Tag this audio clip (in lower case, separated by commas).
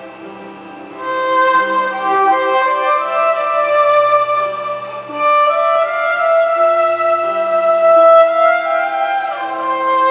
musical instrument, fiddle, music